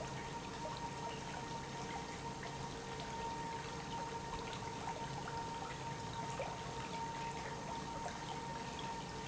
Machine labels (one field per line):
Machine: pump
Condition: normal